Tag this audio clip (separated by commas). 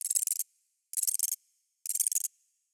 Animal, Insect, Wild animals